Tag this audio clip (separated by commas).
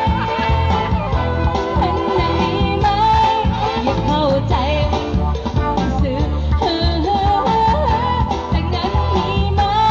Singing, outside, urban or man-made, Music